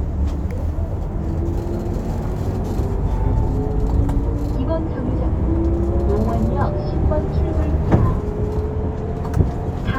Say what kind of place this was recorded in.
bus